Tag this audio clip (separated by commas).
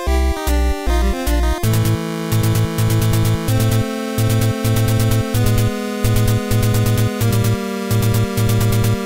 Music